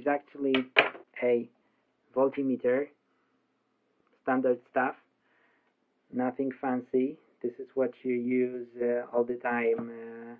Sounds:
speech

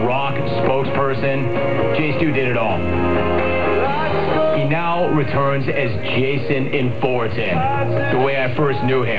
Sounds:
speech, music

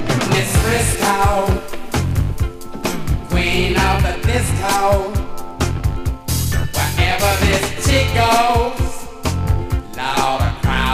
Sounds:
music

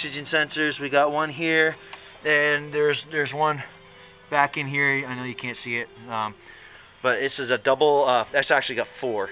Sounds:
speech, music

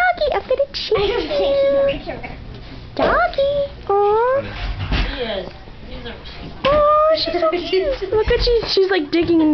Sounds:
speech, bow-wow

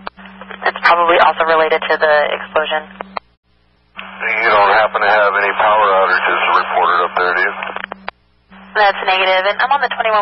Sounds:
speech

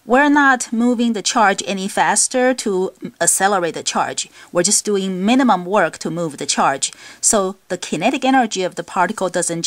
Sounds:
speech

